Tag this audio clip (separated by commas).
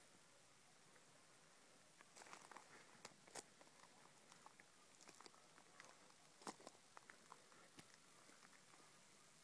Walk